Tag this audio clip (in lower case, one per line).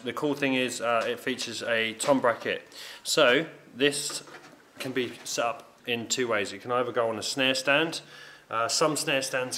speech